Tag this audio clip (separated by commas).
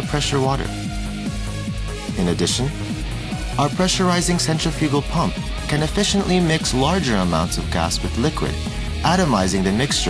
Music, Speech